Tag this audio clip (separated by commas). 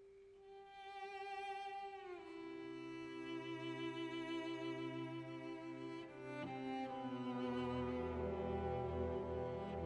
Music